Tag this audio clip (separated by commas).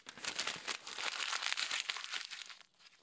Crumpling